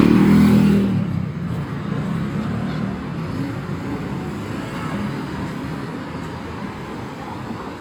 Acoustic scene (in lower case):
street